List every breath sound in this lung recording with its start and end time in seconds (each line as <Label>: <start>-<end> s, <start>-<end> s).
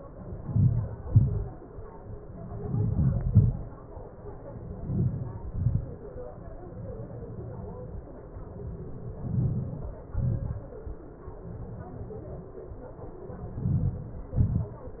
Inhalation: 0.41-0.94 s, 2.65-3.22 s, 4.86-5.51 s, 9.32-9.99 s, 13.66-14.27 s
Exhalation: 1.06-1.49 s, 3.27-3.56 s, 5.57-5.98 s, 10.20-10.72 s, 14.46-14.87 s